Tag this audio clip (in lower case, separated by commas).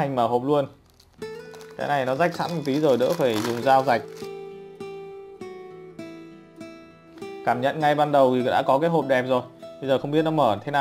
music, speech